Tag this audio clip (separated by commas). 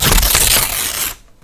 Tearing